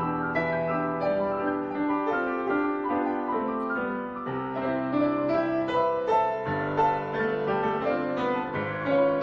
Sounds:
music, harpsichord, piano, keyboard (musical), classical music, musical instrument

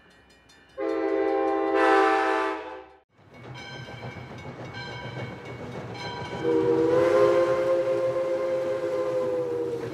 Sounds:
train whistling

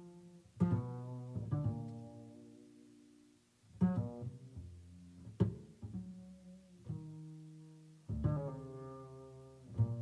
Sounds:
musical instrument, music

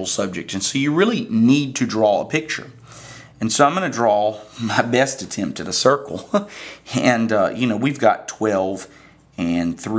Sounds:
speech

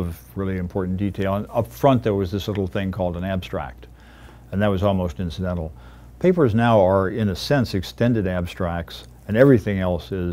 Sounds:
speech

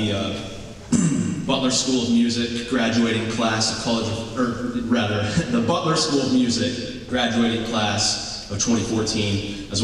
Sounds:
narration, male speech, speech

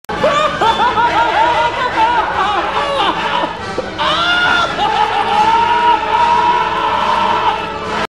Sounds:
music

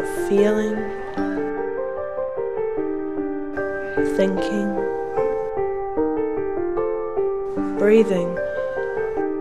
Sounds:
music, speech

